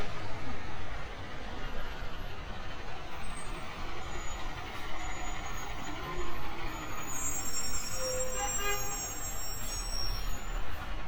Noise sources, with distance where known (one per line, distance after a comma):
large-sounding engine, near
car horn, near